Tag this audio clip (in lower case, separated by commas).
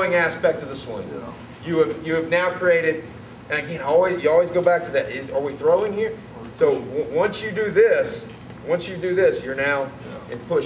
speech